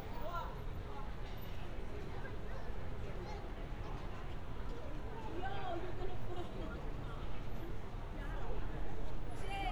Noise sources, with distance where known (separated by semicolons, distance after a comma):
person or small group talking